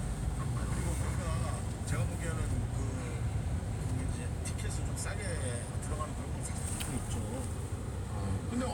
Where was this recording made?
in a car